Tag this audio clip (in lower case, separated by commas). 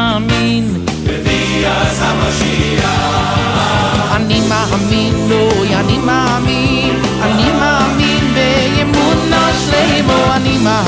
music, sampler